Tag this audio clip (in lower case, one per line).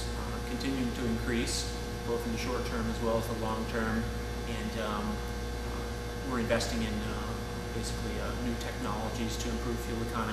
speech